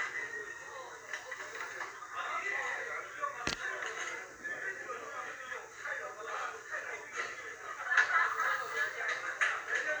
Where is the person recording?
in a restaurant